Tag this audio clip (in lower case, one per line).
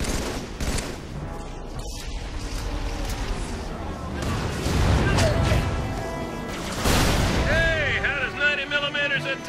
speech